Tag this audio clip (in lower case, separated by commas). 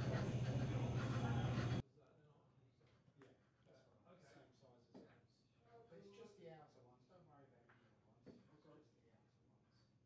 speech